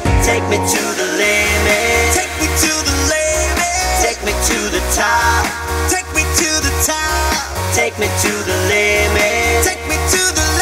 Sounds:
Music

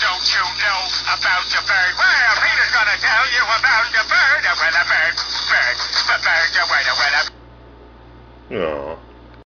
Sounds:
Music, Speech

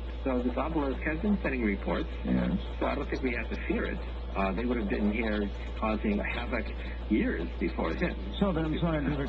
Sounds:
Speech

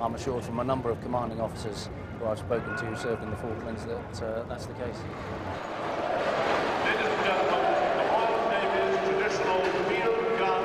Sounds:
Speech

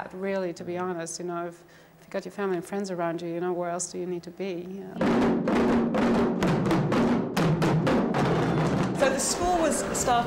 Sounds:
Music, inside a large room or hall, Speech

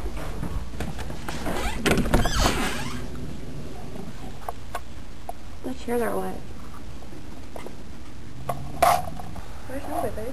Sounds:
Speech, outside, urban or man-made

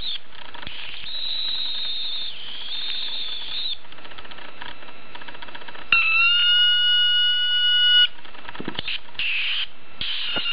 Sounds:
inside a small room

